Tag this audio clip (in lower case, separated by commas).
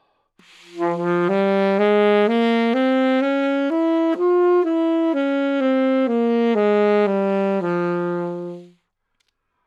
musical instrument, music, woodwind instrument